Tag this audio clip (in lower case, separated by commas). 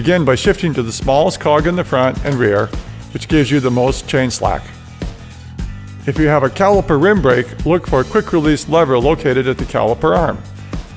bicycle, speech, music